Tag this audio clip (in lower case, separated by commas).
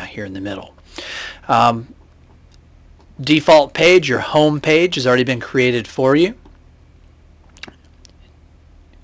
speech